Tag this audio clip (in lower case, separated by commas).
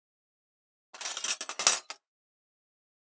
domestic sounds, cutlery